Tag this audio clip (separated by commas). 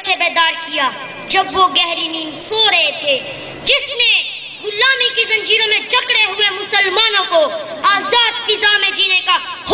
Speech